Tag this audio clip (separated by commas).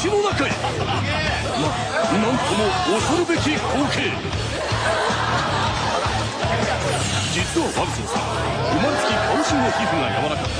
Speech, Music